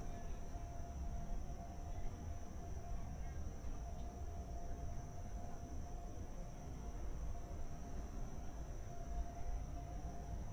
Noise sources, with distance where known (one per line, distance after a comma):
background noise